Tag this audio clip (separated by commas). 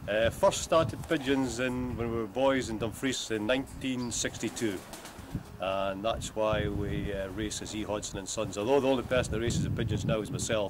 Bird, Speech